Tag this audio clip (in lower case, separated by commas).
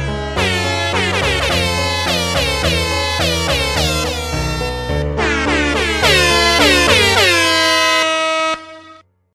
music, truck horn